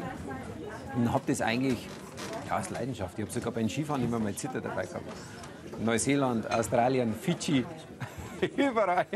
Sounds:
Speech, Music

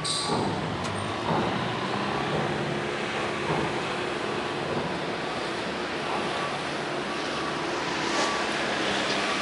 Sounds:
Vehicle, Water vehicle

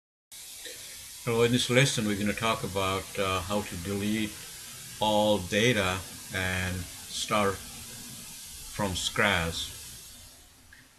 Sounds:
Speech

